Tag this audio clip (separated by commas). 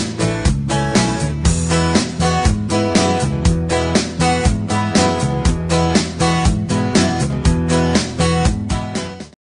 Music